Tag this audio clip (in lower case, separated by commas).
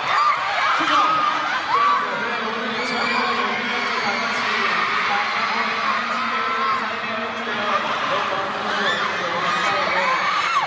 man speaking, speech, narration